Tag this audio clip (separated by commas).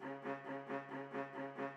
Music, Musical instrument, Bowed string instrument